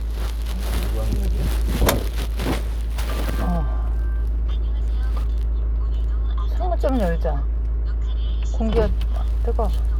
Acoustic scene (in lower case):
car